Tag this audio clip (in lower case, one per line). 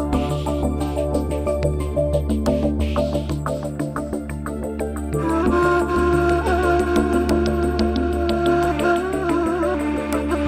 music
tender music